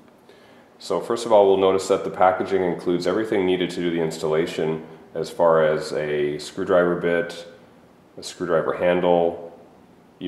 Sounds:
speech

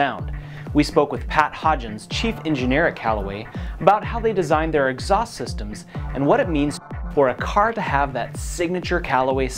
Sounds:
speech, music

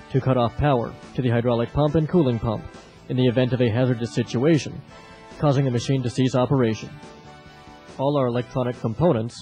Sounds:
speech, music

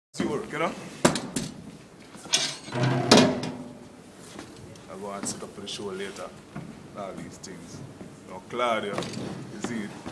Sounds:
speech

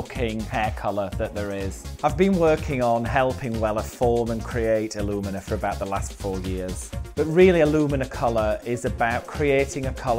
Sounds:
music, speech

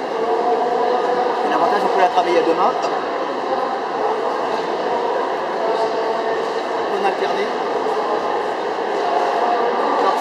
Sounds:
speech

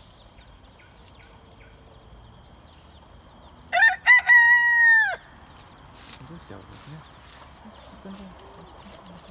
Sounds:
chicken crowing

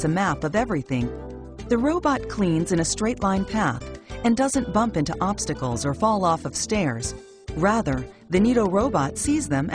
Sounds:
speech, music

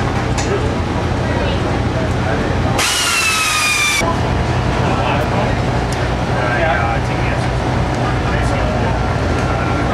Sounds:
speech, idling, engine

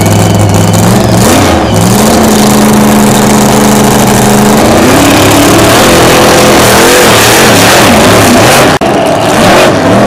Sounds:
car, motor vehicle (road), vehicle

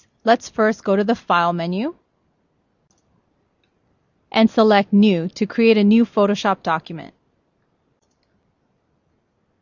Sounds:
speech

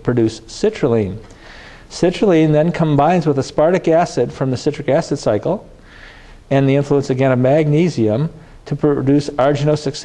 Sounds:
speech

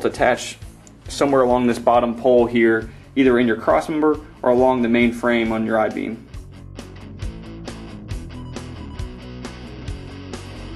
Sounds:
music, speech

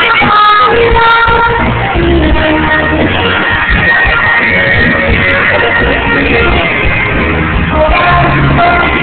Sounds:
inside a public space, music, singing

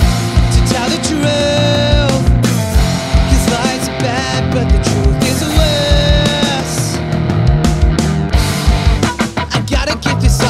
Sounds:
music, funk

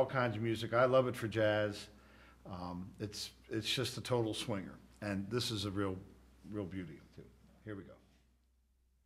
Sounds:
speech

